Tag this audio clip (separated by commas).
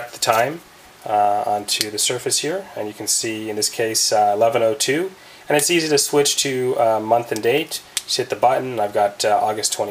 Speech